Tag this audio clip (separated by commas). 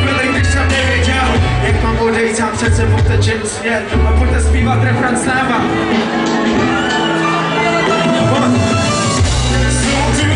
Music